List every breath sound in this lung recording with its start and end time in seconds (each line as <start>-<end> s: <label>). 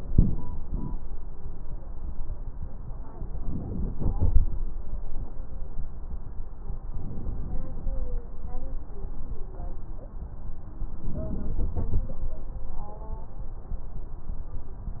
3.39-4.45 s: inhalation
6.90-7.96 s: inhalation
11.01-12.07 s: inhalation